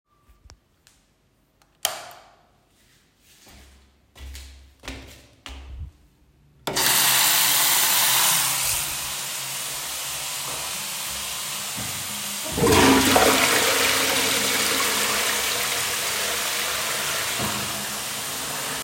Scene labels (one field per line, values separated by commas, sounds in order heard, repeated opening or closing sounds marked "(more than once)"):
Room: bathroom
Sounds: light switch, footsteps, running water, toilet flushing